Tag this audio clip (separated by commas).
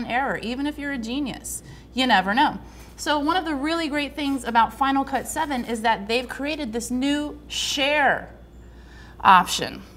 Speech